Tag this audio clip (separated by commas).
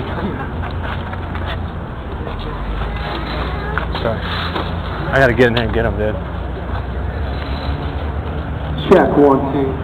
Speech